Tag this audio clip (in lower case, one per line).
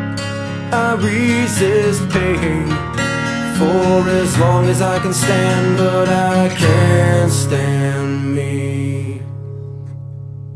music
soundtrack music